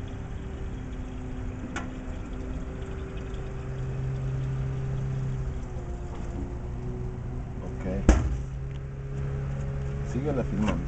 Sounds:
Speech

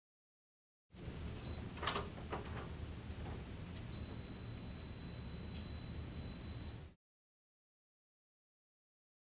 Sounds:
Door

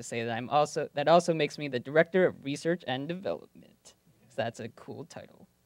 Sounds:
Speech

